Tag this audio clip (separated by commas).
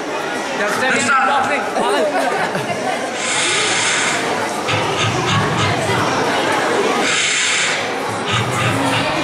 Speech